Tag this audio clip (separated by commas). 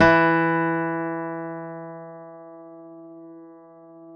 Guitar, Music, Plucked string instrument, Acoustic guitar, Musical instrument